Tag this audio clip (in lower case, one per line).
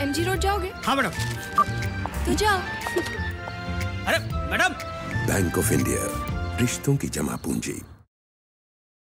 car
vehicle
music
speech